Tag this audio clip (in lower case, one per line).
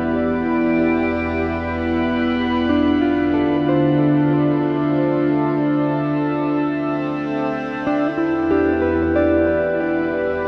music
synthesizer